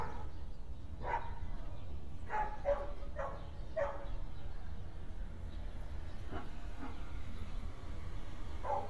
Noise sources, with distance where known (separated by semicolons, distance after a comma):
dog barking or whining